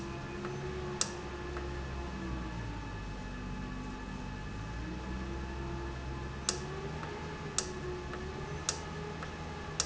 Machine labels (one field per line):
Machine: valve